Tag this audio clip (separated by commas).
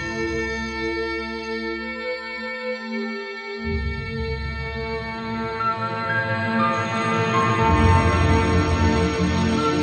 Music